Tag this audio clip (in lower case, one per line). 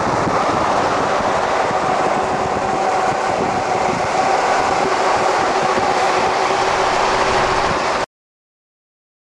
vehicle